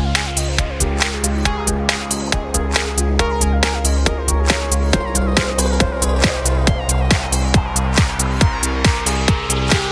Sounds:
Rhythm and blues, Music

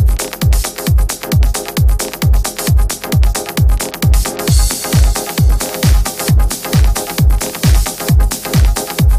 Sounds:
Music

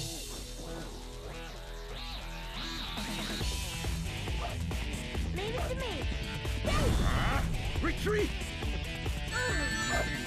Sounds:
Speech, Music

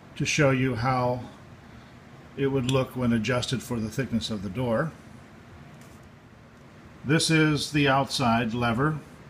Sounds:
Speech

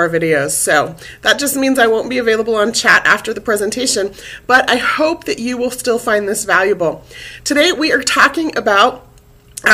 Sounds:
Speech

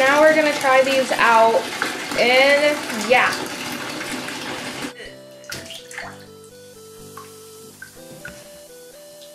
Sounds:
Water, Bathtub (filling or washing), faucet

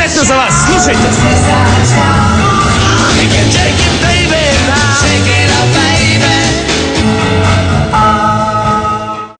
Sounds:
Music, Speech

